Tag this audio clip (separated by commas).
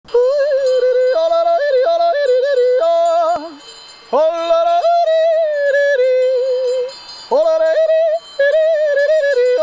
yodelling